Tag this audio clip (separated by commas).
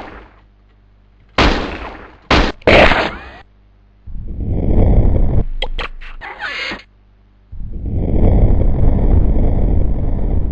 Gunshot